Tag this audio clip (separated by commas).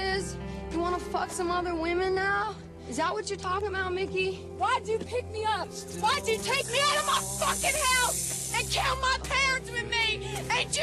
Music, outside, rural or natural, Speech